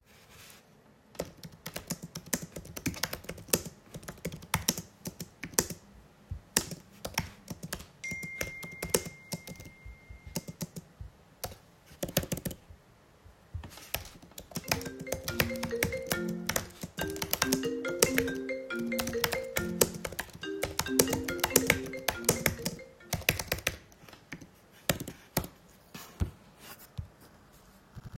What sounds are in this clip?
keyboard typing, phone ringing